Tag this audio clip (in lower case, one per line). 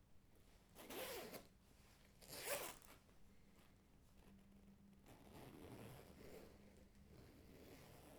zipper (clothing)
home sounds